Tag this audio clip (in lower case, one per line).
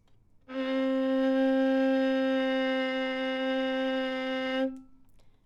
music
bowed string instrument
musical instrument